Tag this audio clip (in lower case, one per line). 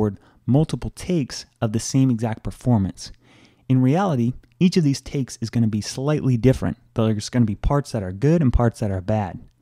speech